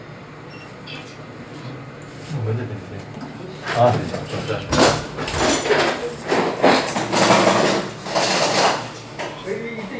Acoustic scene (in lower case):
elevator